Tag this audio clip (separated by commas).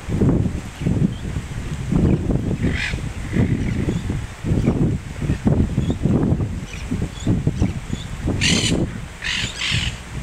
bird squawking